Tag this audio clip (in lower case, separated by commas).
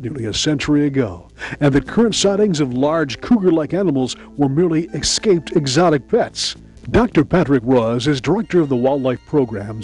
music, speech